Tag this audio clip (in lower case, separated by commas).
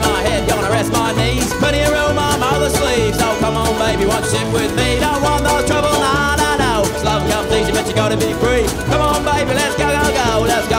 music